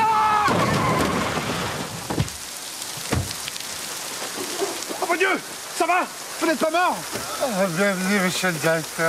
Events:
0.0s-0.5s: shout
0.0s-9.0s: rain
0.5s-1.3s: thud
0.5s-1.4s: tire squeal
2.1s-2.4s: thud
3.1s-3.4s: door
4.9s-5.4s: man speaking
4.9s-9.0s: conversation
5.8s-6.1s: man speaking
6.4s-7.0s: man speaking
7.4s-9.0s: man speaking

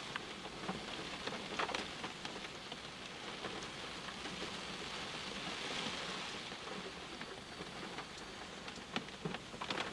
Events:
0.0s-9.9s: rain on surface

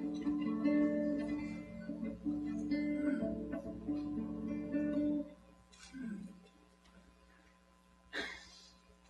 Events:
0.0s-5.2s: music
0.0s-9.0s: background noise
5.7s-6.0s: generic impact sounds
6.0s-6.4s: human voice
6.8s-6.9s: tick
8.1s-8.7s: human voice
9.0s-9.0s: tick

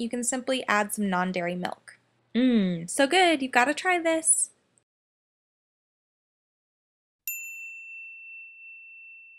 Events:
0.0s-2.0s: female speech
0.0s-4.8s: background noise
2.3s-4.5s: female speech
7.2s-9.3s: background noise
7.2s-9.3s: bell

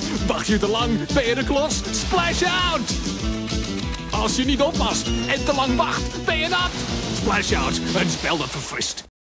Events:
0.0s-8.2s: music
3.9s-4.0s: tick
5.0s-5.9s: sound effect
7.2s-9.0s: man speaking
7.8s-8.7s: water

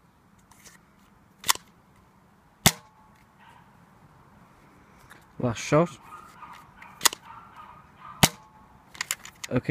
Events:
0.0s-9.7s: wind
4.3s-5.3s: breathing
8.0s-8.2s: yip
8.2s-8.3s: cap gun
8.9s-9.5s: generic impact sounds

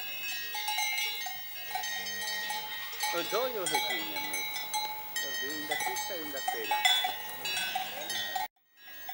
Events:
0.0s-8.4s: background noise
0.0s-8.5s: cowbell
1.6s-2.7s: moo
3.0s-4.3s: man speaking
3.0s-6.7s: conversation
5.2s-6.7s: man speaking
7.8s-8.3s: human voice
8.5s-9.1s: background noise
8.6s-9.1s: cowbell

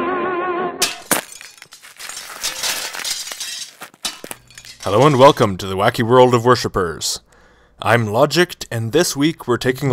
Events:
0.0s-0.7s: music
0.0s-9.9s: background noise
0.8s-5.4s: shatter
4.8s-7.2s: man speaking
7.2s-7.8s: breathing
7.8s-9.9s: man speaking

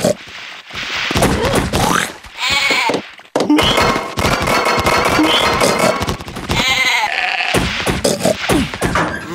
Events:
0.0s-0.2s: sound effect
0.0s-9.3s: video game sound
1.0s-2.2s: sound effect
2.3s-3.2s: sound effect
2.3s-3.0s: bleat
3.3s-6.6s: sound effect
6.5s-7.5s: bleat
7.5s-9.1s: sound effect
9.3s-9.3s: sound effect

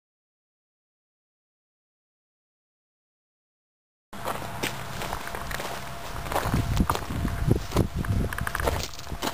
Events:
4.1s-9.3s: mechanisms
4.1s-9.3s: wind
4.2s-4.4s: walk
4.6s-4.8s: walk
4.9s-5.2s: walk
5.3s-5.9s: walk
6.1s-6.6s: walk
6.7s-6.9s: tick
6.7s-7.1s: walk
7.2s-7.5s: tick
7.7s-7.9s: walk
8.0s-8.1s: tick
8.3s-8.7s: tick
8.6s-8.9s: walk

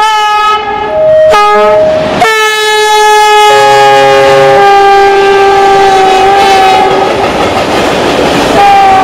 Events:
0.0s-6.9s: train horn
0.0s-9.0s: train
6.8s-9.0s: clickety-clack
8.6s-9.0s: train horn

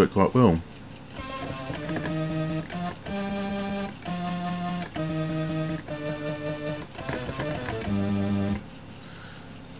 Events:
0.0s-0.7s: man speaking
0.7s-9.7s: music

